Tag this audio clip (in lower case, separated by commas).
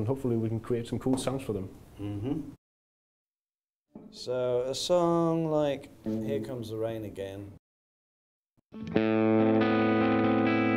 speech, music